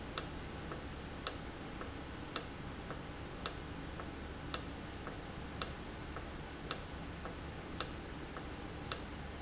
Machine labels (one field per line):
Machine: valve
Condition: normal